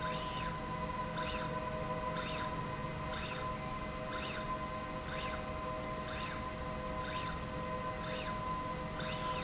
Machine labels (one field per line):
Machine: slide rail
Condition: normal